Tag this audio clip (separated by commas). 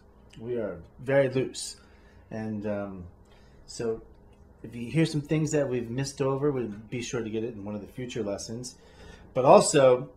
Speech